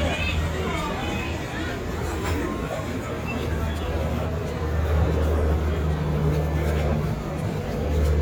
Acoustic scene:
residential area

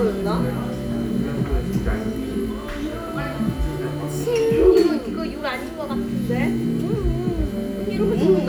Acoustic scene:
restaurant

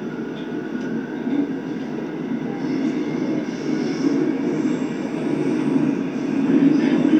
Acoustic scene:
subway train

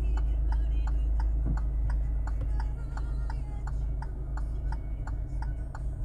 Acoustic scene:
car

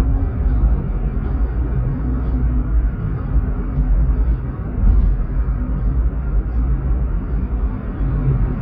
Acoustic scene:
car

